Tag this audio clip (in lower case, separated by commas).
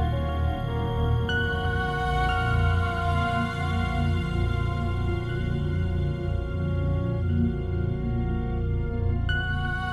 electronic music, music